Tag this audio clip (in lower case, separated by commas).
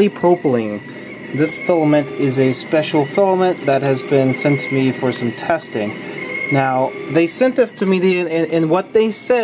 speech